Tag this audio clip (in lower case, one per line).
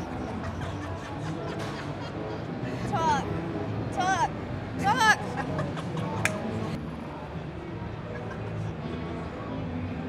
speech
music